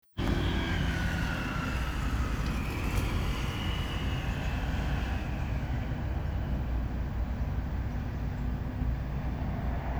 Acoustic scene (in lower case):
street